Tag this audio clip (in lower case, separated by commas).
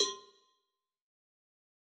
cowbell, bell